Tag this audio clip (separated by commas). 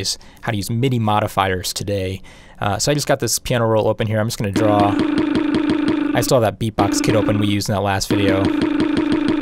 Speech